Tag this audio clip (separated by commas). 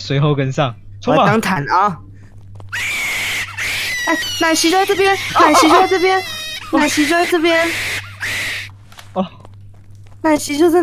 people screaming